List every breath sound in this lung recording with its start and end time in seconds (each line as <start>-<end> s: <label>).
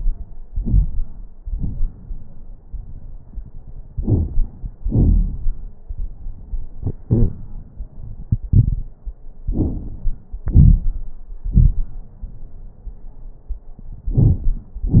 0.45-1.09 s: inhalation
0.45-1.09 s: crackles
1.41-1.89 s: exhalation
1.41-1.89 s: crackles
3.94-4.76 s: inhalation
3.94-4.76 s: crackles
4.87-5.74 s: exhalation
4.87-5.74 s: crackles
9.46-10.41 s: inhalation
9.46-10.41 s: crackles
10.42-11.15 s: exhalation
10.42-11.15 s: crackles